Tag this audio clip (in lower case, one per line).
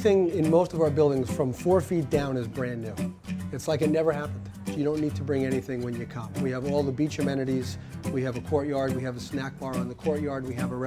speech
music